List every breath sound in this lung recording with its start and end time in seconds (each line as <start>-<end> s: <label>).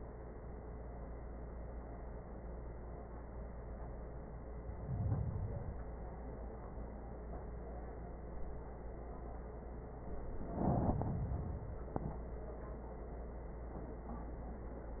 4.47-5.97 s: inhalation
10.10-11.93 s: inhalation